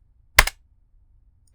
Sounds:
typing, home sounds

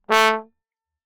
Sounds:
music, musical instrument, brass instrument

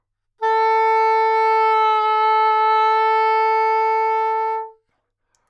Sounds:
musical instrument, music, woodwind instrument

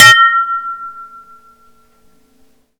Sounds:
dishes, pots and pans, home sounds

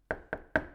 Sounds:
domestic sounds, knock, door

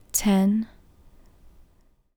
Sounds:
human voice, speech, female speech

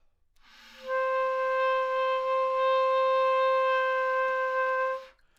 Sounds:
music, musical instrument, wind instrument

